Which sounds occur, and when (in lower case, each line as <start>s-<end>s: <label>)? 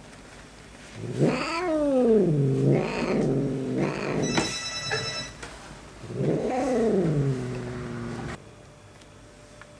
0.0s-9.7s: mechanisms
0.6s-0.7s: tick
0.7s-1.0s: scrape
0.9s-4.5s: caterwaul
2.5s-2.7s: scrape
3.2s-3.3s: generic impact sounds
4.2s-5.3s: telephone bell ringing
4.3s-4.4s: generic impact sounds
4.9s-5.0s: generic impact sounds
5.4s-5.5s: generic impact sounds
6.0s-8.4s: caterwaul
6.2s-6.4s: generic impact sounds
6.4s-6.9s: scrape
7.0s-7.1s: generic impact sounds
7.5s-7.5s: tick
8.3s-8.4s: generic impact sounds
8.6s-8.7s: tick
9.0s-9.1s: tick
9.6s-9.7s: generic impact sounds